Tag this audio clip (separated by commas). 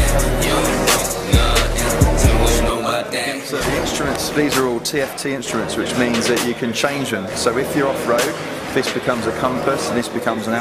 Speech, Music